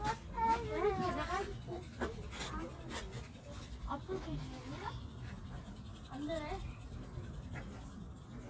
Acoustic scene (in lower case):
park